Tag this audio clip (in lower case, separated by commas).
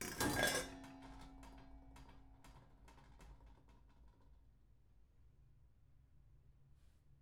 domestic sounds, dishes, pots and pans